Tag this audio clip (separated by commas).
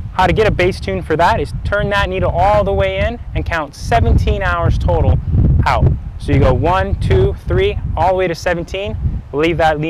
Speech